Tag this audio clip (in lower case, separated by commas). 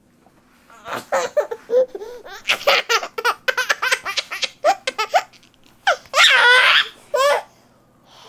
laughter, human voice